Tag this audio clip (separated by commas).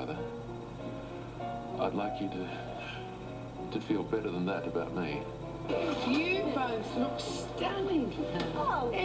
Music, Speech